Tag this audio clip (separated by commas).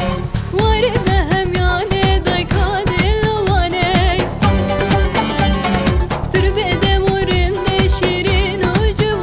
Music of Bollywood, Music